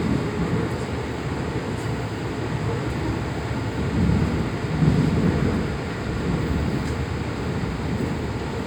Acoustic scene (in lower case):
subway train